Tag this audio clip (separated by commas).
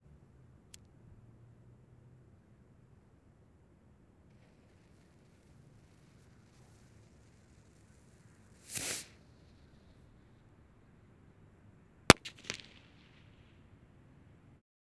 Explosion, Fireworks